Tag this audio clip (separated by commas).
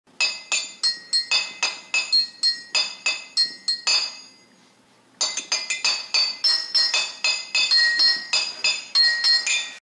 Music